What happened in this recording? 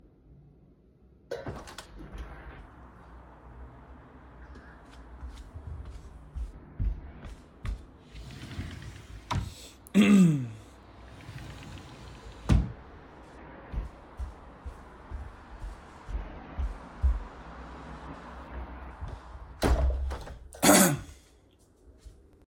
I opened the bedroom window, i walked to the wardrobe opened it then closed it, walked back to the window and closed it.